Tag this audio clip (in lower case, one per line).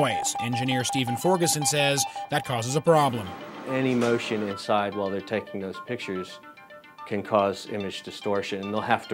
speech
music